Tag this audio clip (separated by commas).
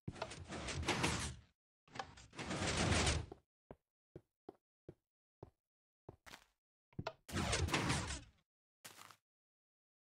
Door, Tap, Sliding door